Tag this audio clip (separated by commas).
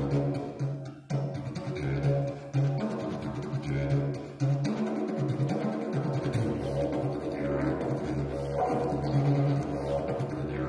playing didgeridoo